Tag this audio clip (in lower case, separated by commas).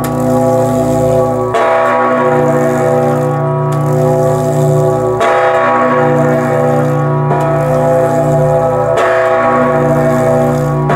bell